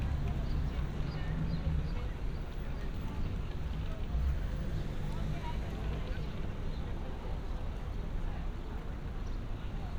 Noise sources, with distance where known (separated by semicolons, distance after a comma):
medium-sounding engine, far; person or small group talking, far